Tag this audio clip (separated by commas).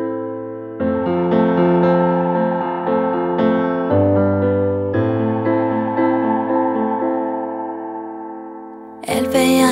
Music